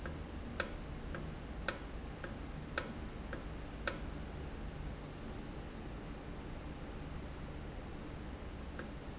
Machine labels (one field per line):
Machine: valve